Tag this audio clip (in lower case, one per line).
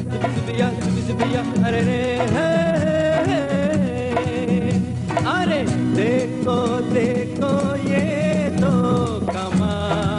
music
singing